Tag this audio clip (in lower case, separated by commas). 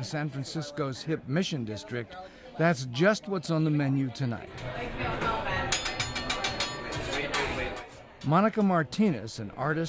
speech